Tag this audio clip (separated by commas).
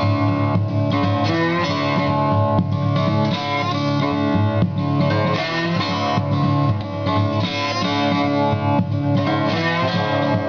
Blues, Guitar, Music